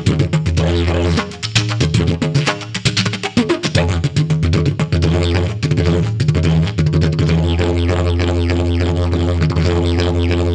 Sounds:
playing didgeridoo

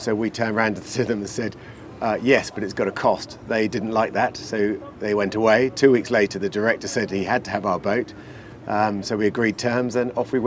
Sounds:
Speech

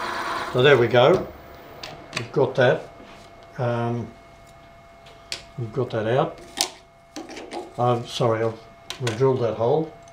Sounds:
Tools, Speech

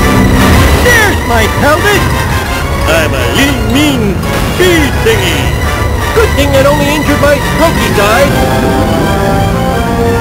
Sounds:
Music, Speech

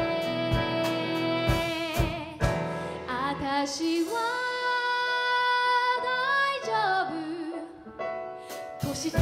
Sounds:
Singing, Music

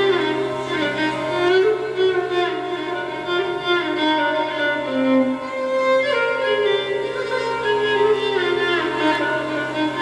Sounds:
String section, Violin, Bowed string instrument

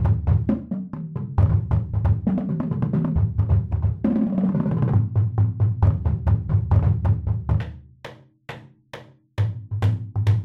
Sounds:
Music, playing bass drum, Musical instrument, Percussion, Drum, Bass drum

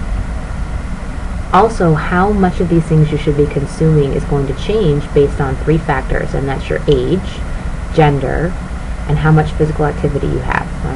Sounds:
Narration

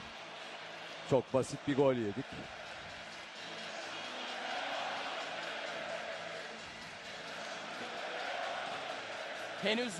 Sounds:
Music, Speech

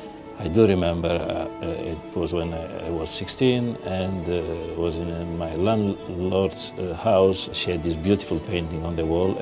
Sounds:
Music, Speech

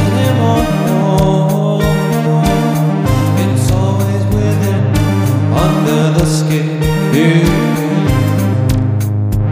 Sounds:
Music

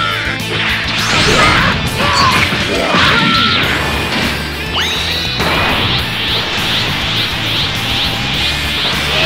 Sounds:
Music

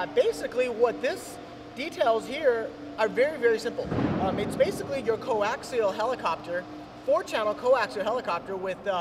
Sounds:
Speech

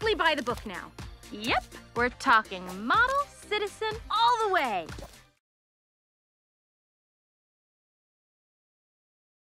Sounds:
Music, Speech

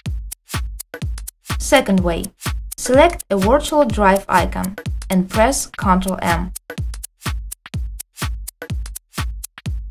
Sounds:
Music, Speech

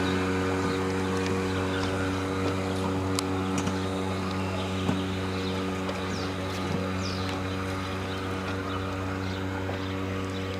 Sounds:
speedboat, Vehicle

